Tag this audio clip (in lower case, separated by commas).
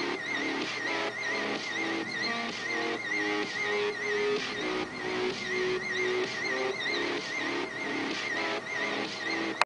music